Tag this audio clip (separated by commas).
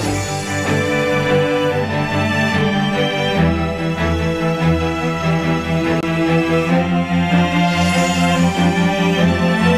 Music